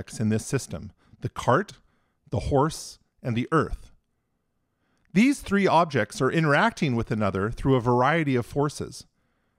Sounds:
Speech

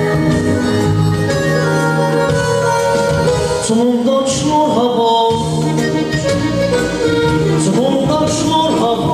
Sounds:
Music

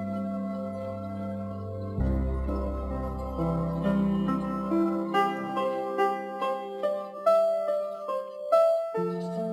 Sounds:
Music

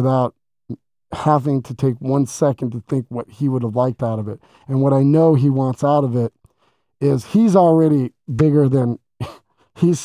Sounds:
Speech

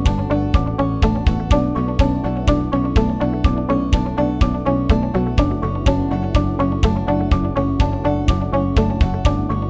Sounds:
Music

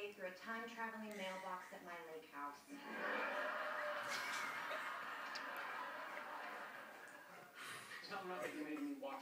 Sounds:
Speech

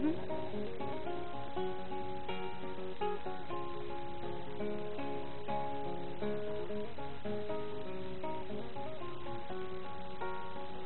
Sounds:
Music

